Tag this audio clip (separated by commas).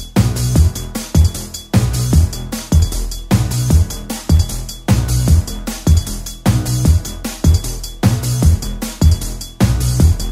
Music